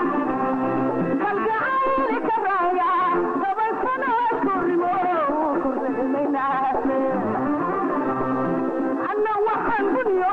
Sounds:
music

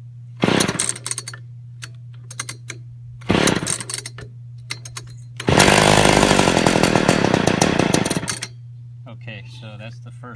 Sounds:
chainsaw, speech, tools

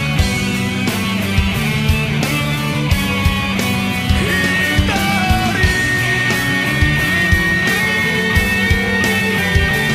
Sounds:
singing, music, inside a public space

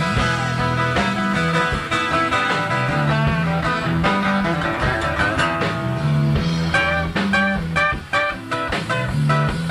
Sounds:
rock music, plucked string instrument, guitar, music, musical instrument

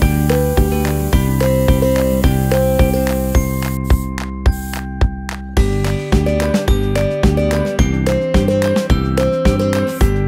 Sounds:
spray, music

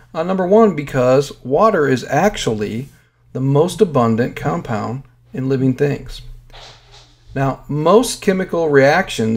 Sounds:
speech

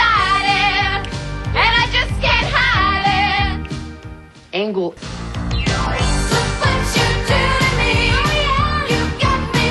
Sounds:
music, speech

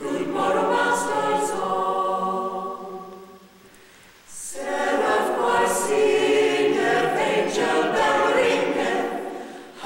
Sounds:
music

